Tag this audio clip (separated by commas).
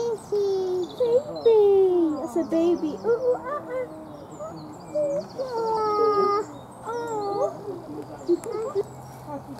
gibbon howling